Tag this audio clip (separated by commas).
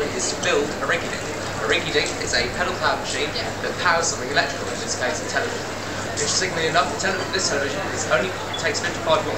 Vehicle, Speech, Bicycle